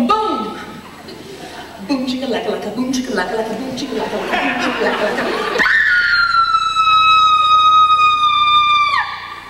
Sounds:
inside a large room or hall

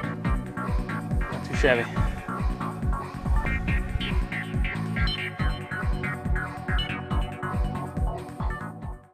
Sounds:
Speech, Music

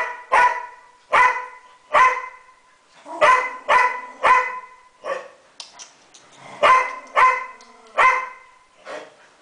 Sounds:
Bark, dog barking, Dog, Domestic animals, Animal

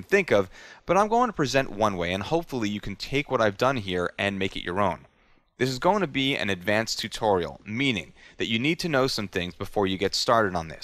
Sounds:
Speech

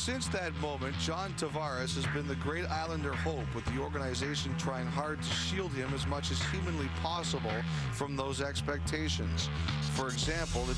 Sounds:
Speech, Music

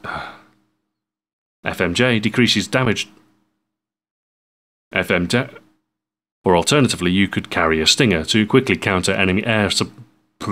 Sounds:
Speech

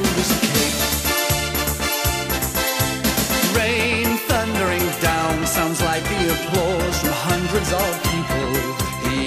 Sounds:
Music

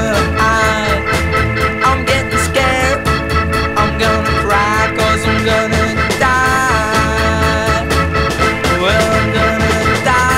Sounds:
Music

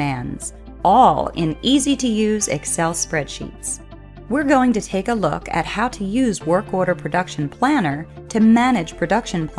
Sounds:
monologue

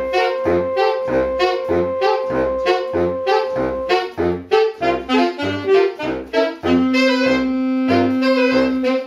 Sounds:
playing saxophone, Musical instrument, Music, Saxophone

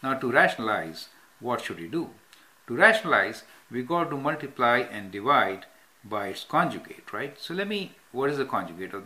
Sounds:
Speech, inside a small room

